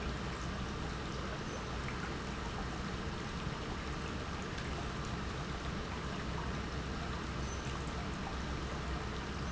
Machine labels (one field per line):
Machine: pump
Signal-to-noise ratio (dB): -6 dB